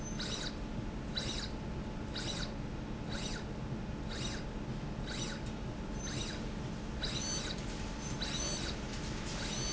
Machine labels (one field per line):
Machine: slide rail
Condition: abnormal